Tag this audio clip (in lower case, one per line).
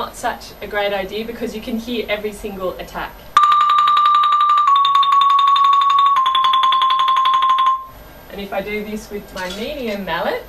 glockenspiel
mallet percussion
marimba